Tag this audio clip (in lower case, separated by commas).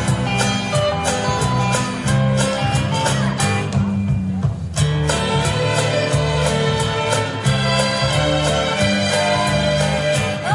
country, music